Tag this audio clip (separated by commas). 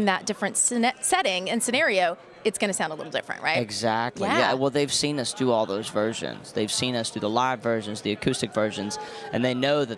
Speech